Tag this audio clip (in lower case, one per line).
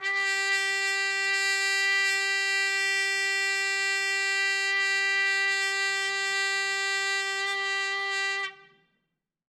musical instrument
trumpet
brass instrument
music